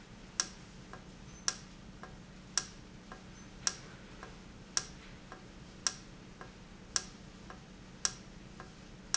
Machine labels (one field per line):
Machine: valve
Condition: normal